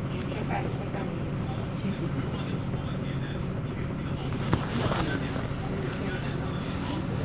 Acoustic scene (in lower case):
bus